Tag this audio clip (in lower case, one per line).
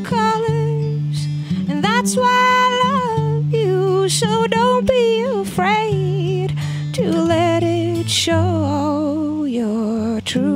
music